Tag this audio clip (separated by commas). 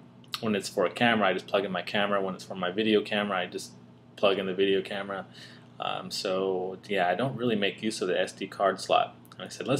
Speech